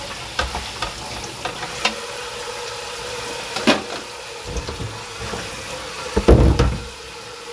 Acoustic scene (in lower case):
kitchen